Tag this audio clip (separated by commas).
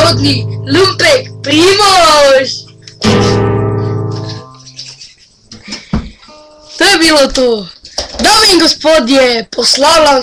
Plucked string instrument, Guitar, Musical instrument, Music